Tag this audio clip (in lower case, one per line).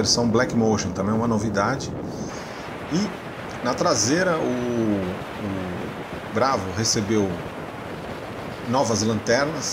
speech
vehicle
car
motor vehicle (road)